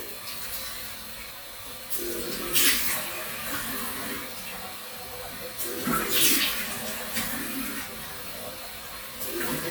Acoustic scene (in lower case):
restroom